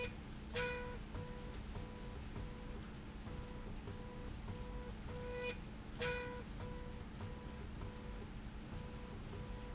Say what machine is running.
slide rail